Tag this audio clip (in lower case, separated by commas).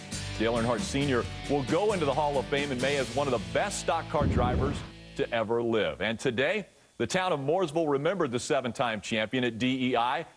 music, speech